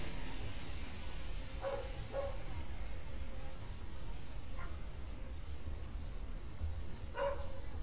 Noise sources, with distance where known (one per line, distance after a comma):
engine of unclear size, far
person or small group talking, far
dog barking or whining